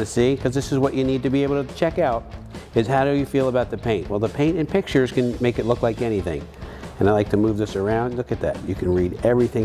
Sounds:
music
speech

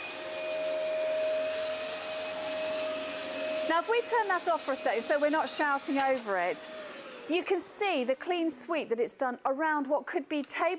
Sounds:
speech
inside a large room or hall
vacuum cleaner

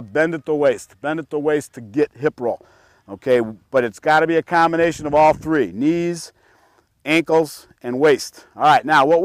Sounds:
speech

